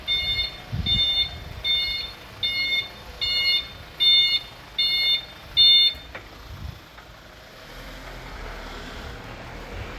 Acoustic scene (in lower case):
residential area